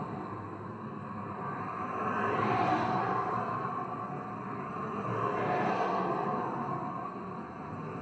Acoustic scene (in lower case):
street